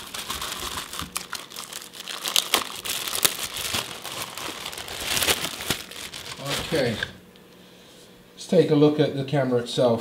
Plastic is crinkled, then a man speaks